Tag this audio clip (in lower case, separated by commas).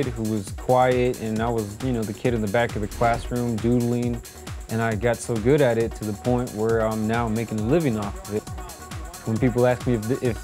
music, speech